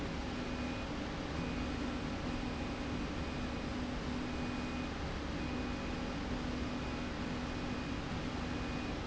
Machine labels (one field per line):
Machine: slide rail